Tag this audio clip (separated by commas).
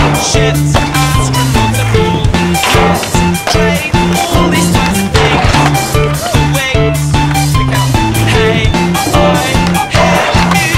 Skateboard